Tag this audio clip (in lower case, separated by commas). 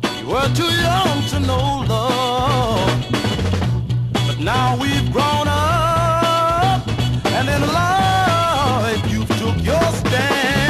soul music, music